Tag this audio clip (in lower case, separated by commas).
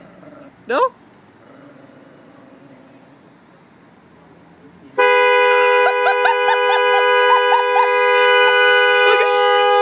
car horn